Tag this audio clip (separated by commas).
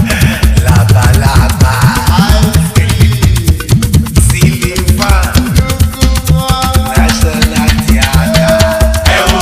Afrobeat, Music